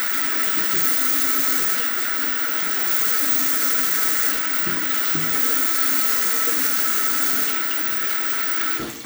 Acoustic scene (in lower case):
restroom